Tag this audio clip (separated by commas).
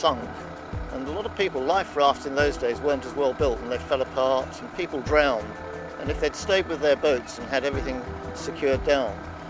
Speech, Music